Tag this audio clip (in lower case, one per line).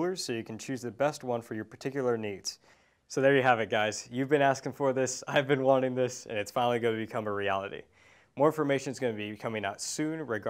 speech